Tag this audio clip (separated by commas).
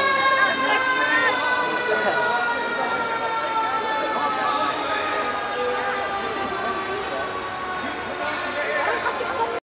fire truck (siren), Siren, Speech, Vehicle